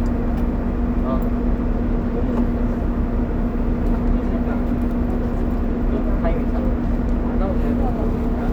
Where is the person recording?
on a bus